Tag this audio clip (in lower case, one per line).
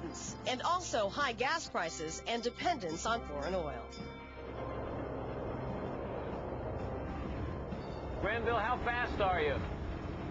vehicle
speech
music